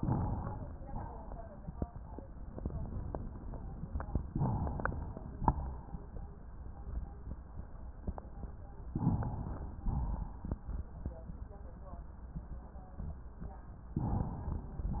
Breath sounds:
Inhalation: 0.00-0.67 s, 4.29-5.29 s, 8.96-9.83 s, 13.96-14.84 s
Exhalation: 0.80-1.46 s, 5.35-6.22 s, 9.88-10.76 s

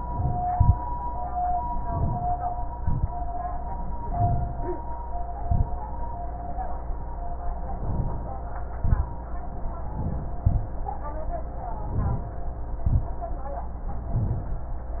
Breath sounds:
Inhalation: 0.00-0.48 s, 1.73-2.37 s, 4.08-4.80 s, 7.78-8.33 s, 9.94-10.44 s, 11.74-12.39 s, 14.10-14.71 s
Exhalation: 0.47-0.76 s, 2.71-3.11 s, 5.45-5.71 s, 8.80-9.15 s, 10.44-10.78 s, 12.84-13.15 s
Rhonchi: 0.00-0.48 s

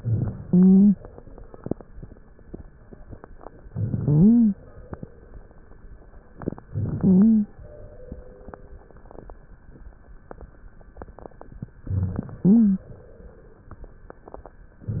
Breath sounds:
Inhalation: 0.00-0.42 s, 3.66-4.59 s, 6.68-7.51 s, 11.88-12.90 s
Exhalation: 0.44-0.97 s
Wheeze: 4.00-4.59 s, 7.00-7.51 s, 12.39-12.92 s
Crackles: 0.00-0.42 s, 3.64-4.00 s, 6.70-7.00 s, 11.84-12.39 s

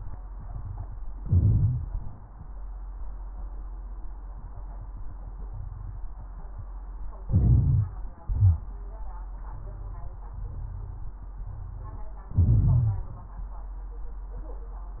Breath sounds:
Inhalation: 1.19-1.87 s, 7.26-8.01 s, 12.34-13.15 s
Exhalation: 8.22-8.70 s
Crackles: 1.17-1.85 s, 7.24-8.05 s, 8.19-8.70 s, 12.34-13.15 s

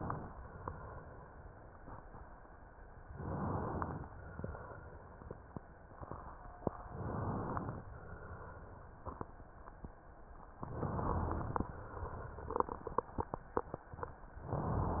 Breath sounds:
Inhalation: 3.08-4.07 s, 6.89-7.82 s, 10.60-11.71 s
Exhalation: 4.11-5.72 s, 7.85-9.46 s, 11.71-13.47 s
Crackles: 6.89-7.82 s, 10.60-11.71 s

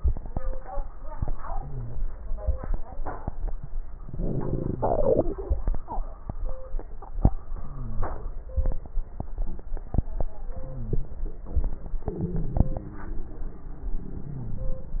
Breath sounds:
Inhalation: 1.50-2.14 s, 7.50-8.14 s, 10.56-11.20 s, 14.24-14.88 s
Crackles: 1.50-2.14 s, 7.50-8.14 s, 10.56-11.20 s, 14.24-14.88 s

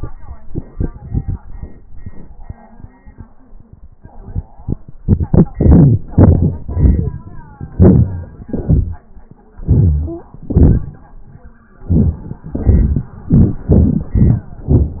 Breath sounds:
Inhalation: 5.03-5.54 s, 6.01-6.62 s, 7.59-8.46 s, 9.45-10.36 s, 11.76-12.42 s, 13.12-13.59 s, 14.08-14.58 s
Exhalation: 5.55-6.00 s, 6.64-7.59 s, 8.46-9.43 s, 10.36-11.71 s, 12.43-13.12 s, 13.59-14.06 s, 14.59-15.00 s
Stridor: 10.06-10.35 s

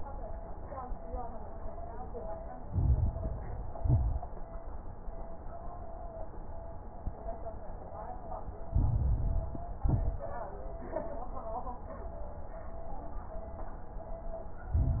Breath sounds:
Inhalation: 2.66-3.78 s, 8.70-9.82 s, 14.71-15.00 s
Exhalation: 3.77-4.25 s, 9.83-10.32 s
Crackles: 2.66-3.78 s, 3.79-4.25 s, 8.70-9.82 s, 14.71-15.00 s

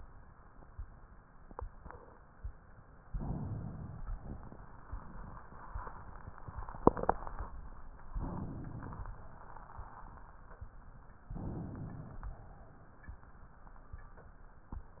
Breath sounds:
Inhalation: 3.09-4.04 s, 8.11-9.13 s, 11.27-12.29 s
Exhalation: 4.12-5.51 s

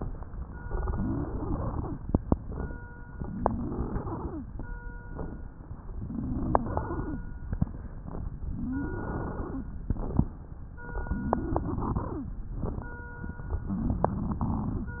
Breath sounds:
Inhalation: 0.83-1.92 s, 3.30-4.39 s, 6.04-7.13 s, 8.59-9.69 s, 11.28-12.23 s
Wheeze: 0.83-1.93 s, 3.30-4.40 s, 6.04-7.14 s, 8.59-9.69 s, 11.28-12.28 s, 13.77-14.88 s

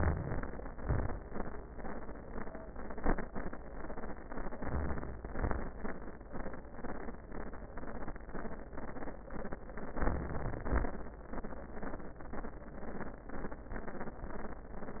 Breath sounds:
Inhalation: 0.00-0.52 s, 4.30-5.19 s, 9.88-10.65 s
Exhalation: 0.77-1.29 s, 5.27-5.79 s, 10.66-11.20 s

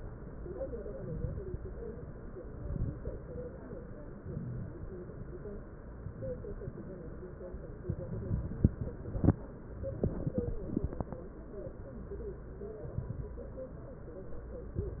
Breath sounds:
Inhalation: 0.91-1.63 s, 2.37-3.10 s, 6.02-6.74 s, 7.87-8.68 s, 12.73-13.43 s, 14.72-15.00 s
Exhalation: 8.68-9.40 s

